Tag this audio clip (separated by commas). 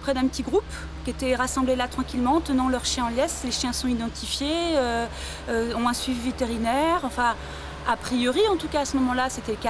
Speech